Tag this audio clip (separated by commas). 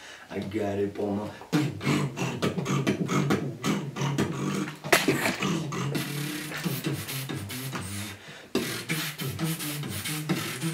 beat boxing